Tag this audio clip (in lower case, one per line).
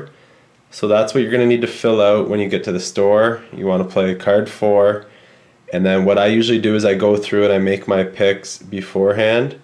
speech